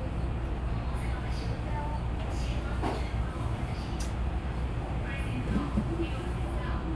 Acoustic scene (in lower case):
subway train